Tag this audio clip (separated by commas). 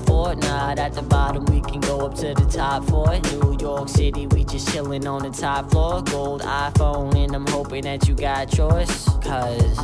Music